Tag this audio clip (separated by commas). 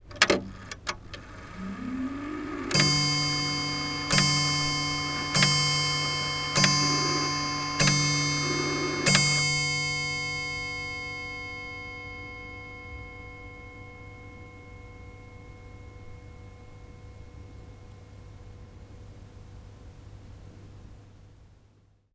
Mechanisms, Clock